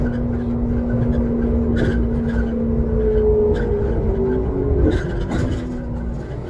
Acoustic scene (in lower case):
bus